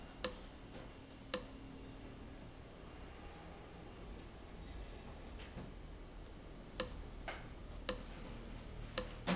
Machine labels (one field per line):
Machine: valve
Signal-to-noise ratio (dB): 6 dB